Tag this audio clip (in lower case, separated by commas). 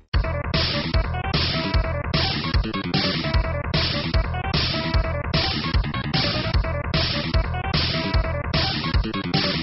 music, disco